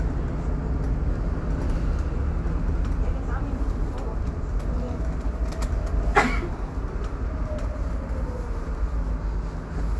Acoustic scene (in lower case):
bus